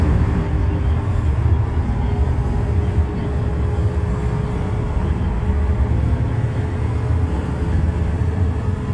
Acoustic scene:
bus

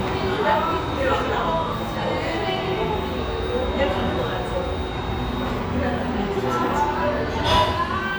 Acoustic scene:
restaurant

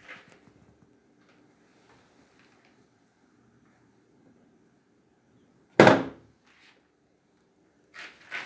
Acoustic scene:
restroom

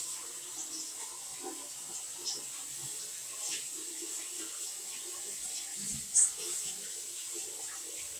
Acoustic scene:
restroom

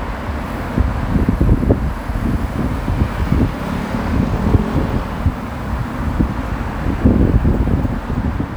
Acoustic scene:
street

